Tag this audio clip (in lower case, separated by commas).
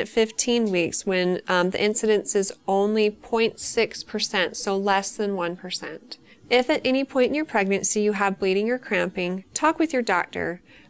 speech